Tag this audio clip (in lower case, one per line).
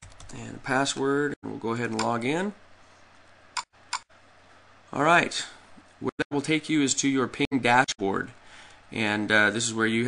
speech